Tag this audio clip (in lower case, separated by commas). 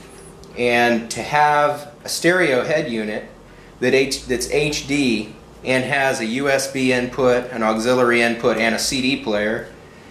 speech